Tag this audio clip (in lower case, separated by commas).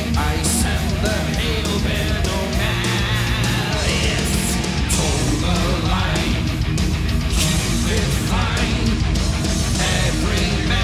guitar, musical instrument